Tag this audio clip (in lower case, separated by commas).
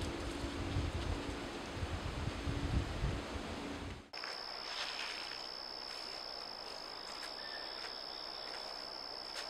chipmunk chirping